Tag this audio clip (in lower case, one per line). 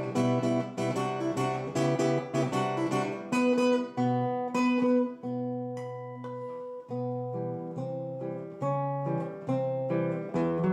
musical instrument
guitar
music
playing acoustic guitar
plucked string instrument
acoustic guitar